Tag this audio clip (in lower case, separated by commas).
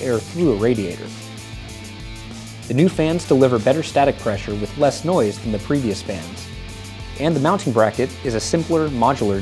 music, speech